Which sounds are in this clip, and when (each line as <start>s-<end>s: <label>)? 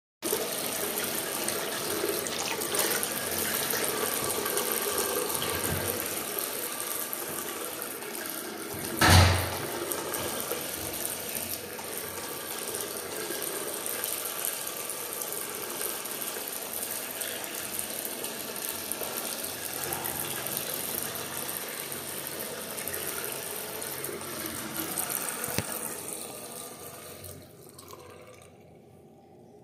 0.2s-29.0s: running water
8.9s-9.6s: door